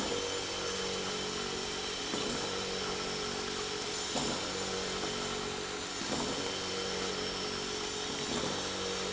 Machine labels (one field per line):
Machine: pump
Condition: abnormal